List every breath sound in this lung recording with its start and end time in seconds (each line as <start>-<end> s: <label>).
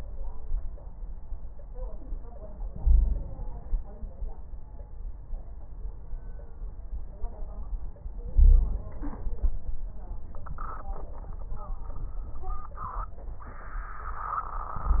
2.69-4.25 s: inhalation
2.76-3.29 s: wheeze
8.34-8.95 s: wheeze
8.34-9.36 s: inhalation